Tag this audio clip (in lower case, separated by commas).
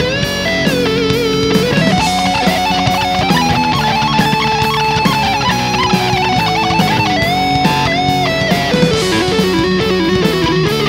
music, bass guitar, guitar, strum, musical instrument, plucked string instrument